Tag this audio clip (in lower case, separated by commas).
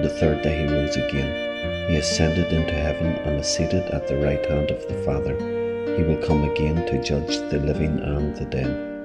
background music, new-age music, music, speech